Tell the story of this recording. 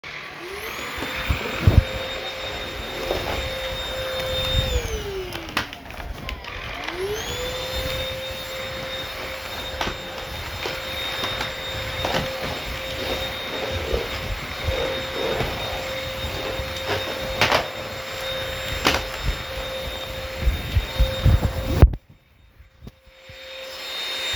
I carried the phone while vacuuming the living room. The vacuum cleaner is the dominant sound during the entire recording.